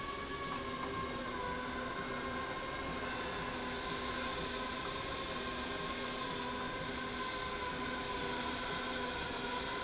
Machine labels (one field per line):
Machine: slide rail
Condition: normal